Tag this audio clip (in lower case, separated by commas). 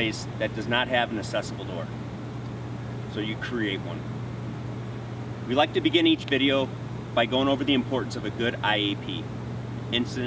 speech